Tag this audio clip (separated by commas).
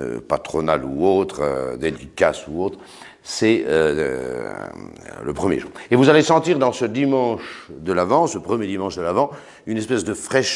Speech